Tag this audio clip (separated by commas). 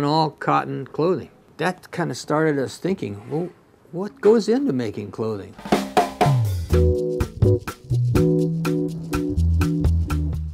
Music, inside a small room, Speech